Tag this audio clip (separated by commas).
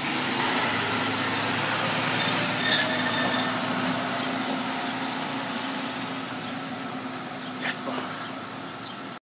Vehicle, Truck, Speech